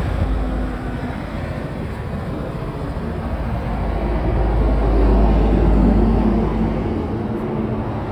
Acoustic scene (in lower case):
residential area